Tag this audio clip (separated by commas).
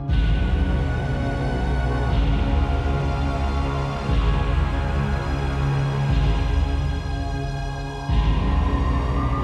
Sound effect, Music